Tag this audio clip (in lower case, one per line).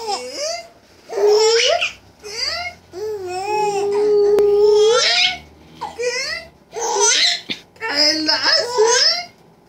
baby laughter